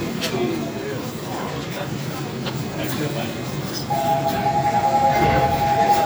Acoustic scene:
subway train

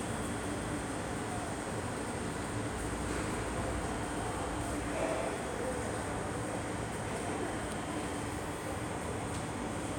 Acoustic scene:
subway station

